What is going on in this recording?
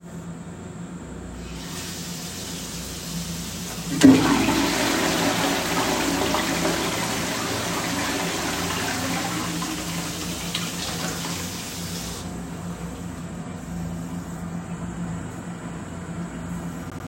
I placed the recording device on the bathroom counter. I turned on the tap and let the water run for several seconds. While the water was still running, I flushed the toilet so that both sounds overlapped clearly. I then turned off the tap as the flush was dying down.